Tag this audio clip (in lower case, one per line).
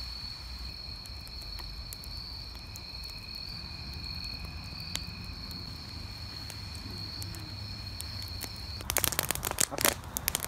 fire crackling